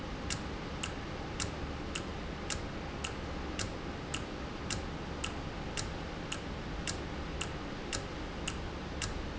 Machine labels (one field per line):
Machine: valve